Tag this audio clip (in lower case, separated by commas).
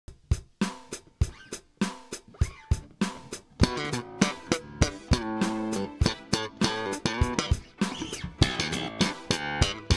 music, funk, bass guitar, guitar